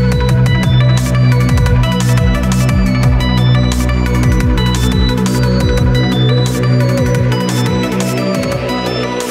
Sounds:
Music, Drum and bass

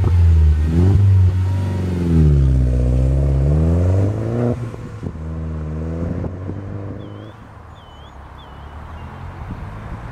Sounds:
Animal

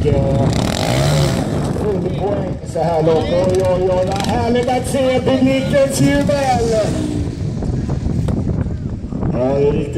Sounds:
Vehicle, outside, rural or natural, Speech, swoosh

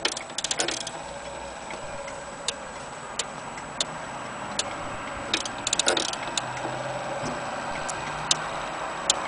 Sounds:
Tick, Tick-tock

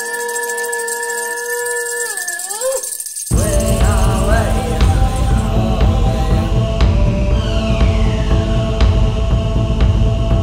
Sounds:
Music

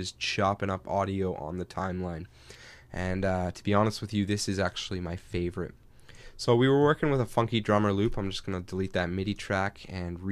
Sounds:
Speech

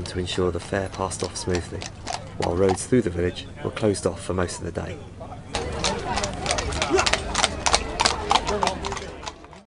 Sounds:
Speech

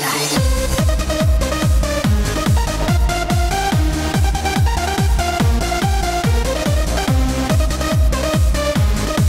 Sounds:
Music

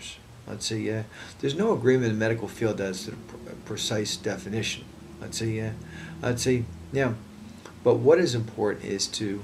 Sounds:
Speech

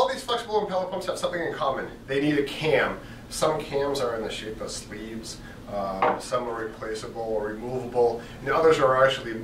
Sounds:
Speech

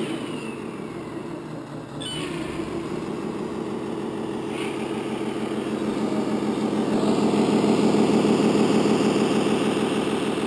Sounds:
speedboat

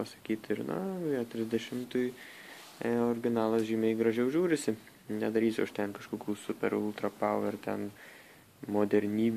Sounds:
Speech

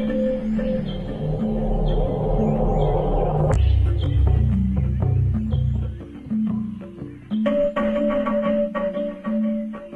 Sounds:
Music

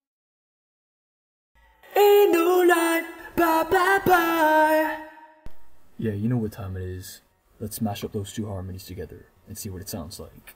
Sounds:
Speech, Singing

